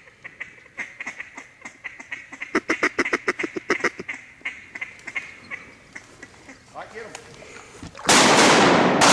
Ducks are honking followed by a man talking and three gunshots